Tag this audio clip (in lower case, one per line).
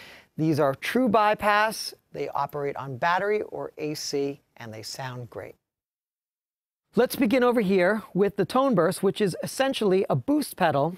speech